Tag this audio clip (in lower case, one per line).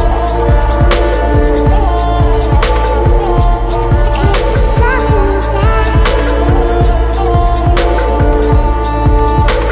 music